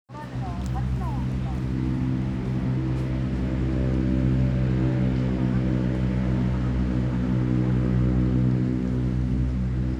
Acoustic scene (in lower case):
residential area